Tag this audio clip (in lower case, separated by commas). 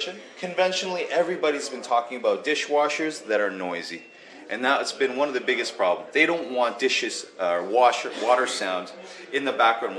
speech